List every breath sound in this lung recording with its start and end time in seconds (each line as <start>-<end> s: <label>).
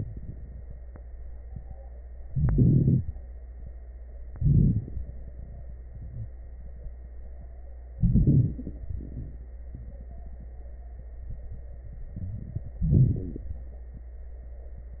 2.25-3.05 s: inhalation
2.25-3.05 s: crackles
4.25-5.06 s: inhalation
4.25-5.06 s: exhalation
4.25-5.06 s: crackles
7.97-8.78 s: inhalation
7.97-8.78 s: crackles
8.82-9.63 s: exhalation
12.82-13.55 s: inhalation
12.82-13.55 s: crackles